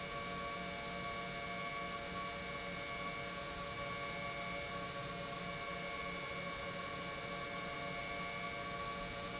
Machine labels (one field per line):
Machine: pump